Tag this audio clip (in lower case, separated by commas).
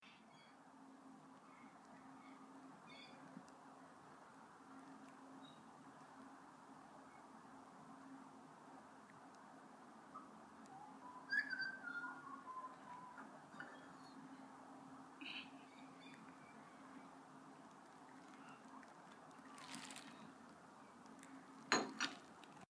animal, chirp, wild animals, bird, bird vocalization